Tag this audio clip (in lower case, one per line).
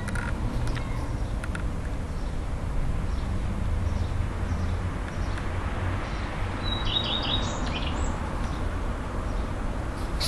magpie calling